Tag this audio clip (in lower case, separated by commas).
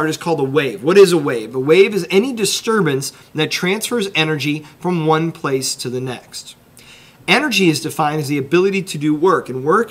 speech